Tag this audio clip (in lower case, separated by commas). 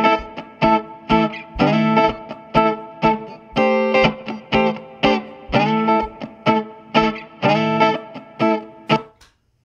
plucked string instrument, music, playing electric guitar, electric guitar, acoustic guitar, musical instrument, strum, guitar